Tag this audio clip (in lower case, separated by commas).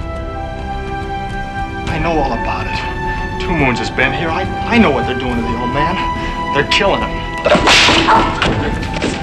speech, music